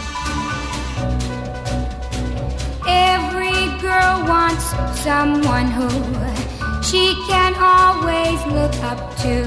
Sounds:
music

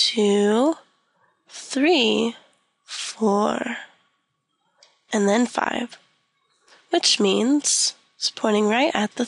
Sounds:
speech

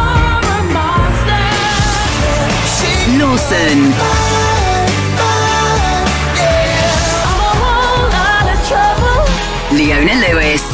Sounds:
speech
music

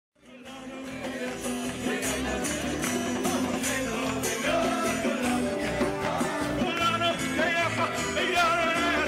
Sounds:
music
choir
male singing

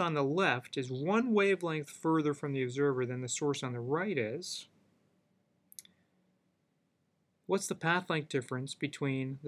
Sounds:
narration
speech

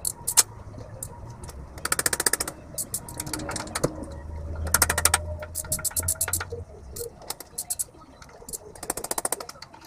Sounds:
vehicle

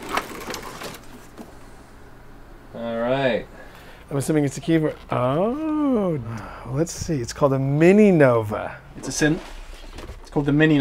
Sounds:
speech

